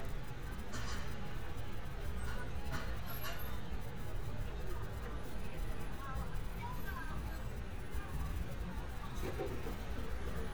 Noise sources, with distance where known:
person or small group talking, far

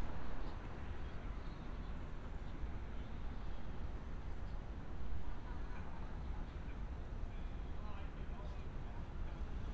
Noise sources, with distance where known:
person or small group talking, far

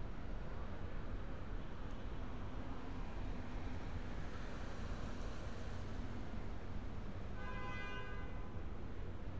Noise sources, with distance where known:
car horn, far

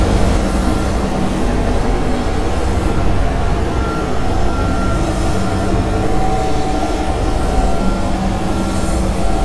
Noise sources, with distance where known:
large-sounding engine

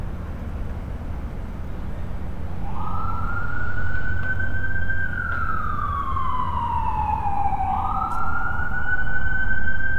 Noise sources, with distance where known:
siren, far

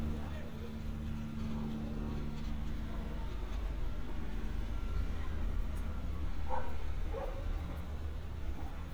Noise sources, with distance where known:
unidentified human voice, far
dog barking or whining, near

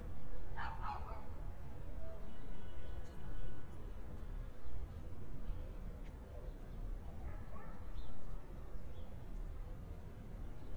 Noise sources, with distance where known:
dog barking or whining, far

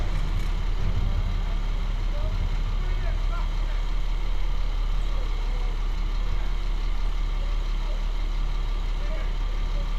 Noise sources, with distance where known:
large-sounding engine, near
person or small group talking

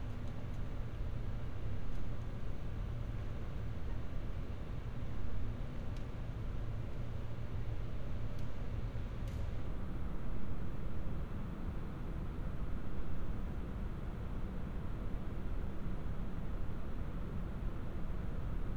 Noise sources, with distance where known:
background noise

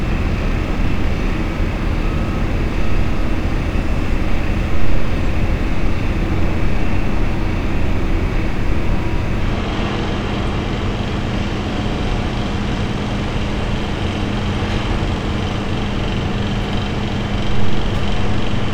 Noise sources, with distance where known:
unidentified impact machinery

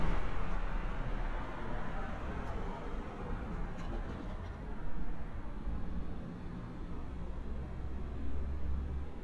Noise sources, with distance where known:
medium-sounding engine, near

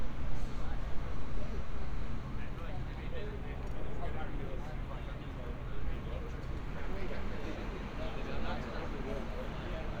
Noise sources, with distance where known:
person or small group talking, far

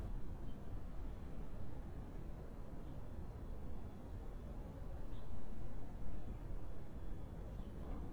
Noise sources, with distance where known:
background noise

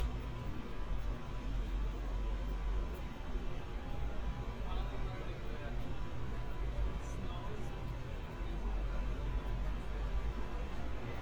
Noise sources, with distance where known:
person or small group talking, far

